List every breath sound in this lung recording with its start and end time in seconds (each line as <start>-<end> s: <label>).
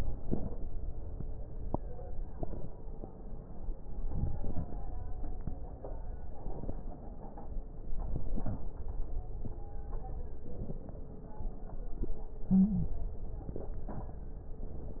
3.92-4.68 s: inhalation
3.92-4.68 s: crackles
7.90-8.66 s: inhalation
7.90-8.66 s: crackles
12.54-12.93 s: stridor